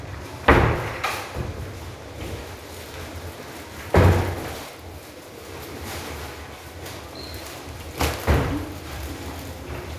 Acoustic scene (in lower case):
restroom